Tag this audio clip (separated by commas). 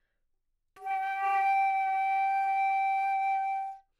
Wind instrument, Music, Musical instrument